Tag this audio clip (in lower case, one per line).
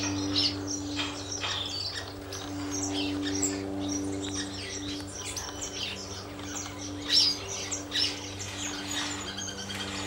bird
tweeting
bird call
chirp